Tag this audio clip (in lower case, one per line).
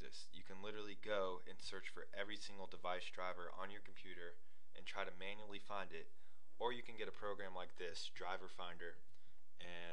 speech